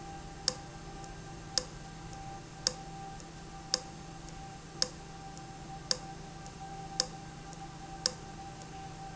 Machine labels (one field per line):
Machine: valve